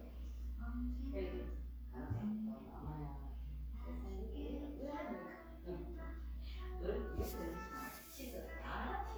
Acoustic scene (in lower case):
crowded indoor space